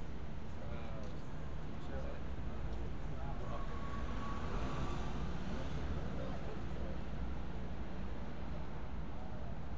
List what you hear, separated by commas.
medium-sounding engine, person or small group talking